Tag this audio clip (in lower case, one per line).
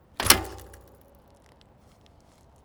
thud